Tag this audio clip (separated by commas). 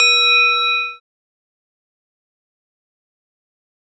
Bell